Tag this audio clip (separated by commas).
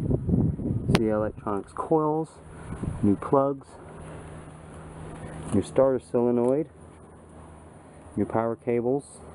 Speech